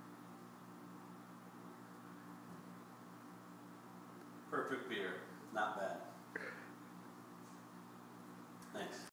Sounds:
Speech

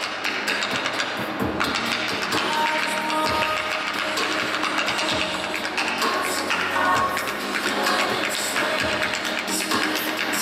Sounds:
Tap, Music

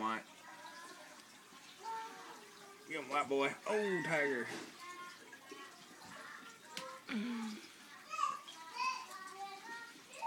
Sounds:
Speech

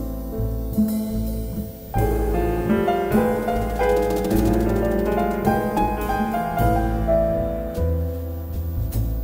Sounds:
Music

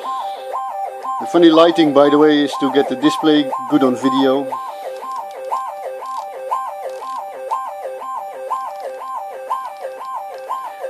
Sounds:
Speech, Music

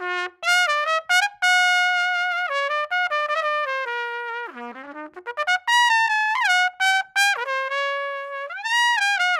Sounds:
playing cornet

